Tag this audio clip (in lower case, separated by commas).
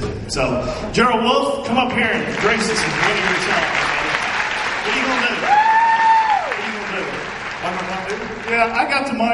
male speech